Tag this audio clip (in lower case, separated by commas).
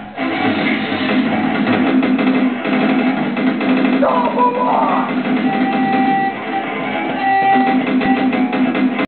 music, musical instrument